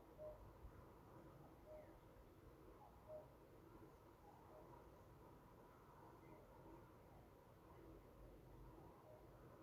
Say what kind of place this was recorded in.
park